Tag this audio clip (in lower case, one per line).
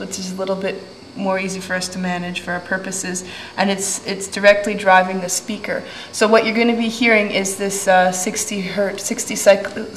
speech